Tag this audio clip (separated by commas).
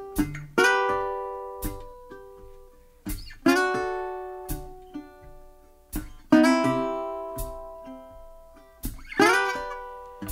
Ukulele, Music